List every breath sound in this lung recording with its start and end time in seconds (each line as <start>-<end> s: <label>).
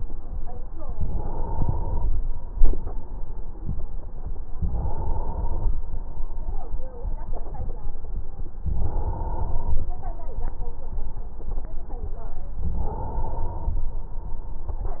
0.92-2.10 s: inhalation
0.92-2.10 s: crackles
4.61-5.79 s: inhalation
4.61-5.79 s: crackles
8.75-9.93 s: inhalation
8.75-9.93 s: crackles
12.62-13.80 s: inhalation
12.62-13.80 s: crackles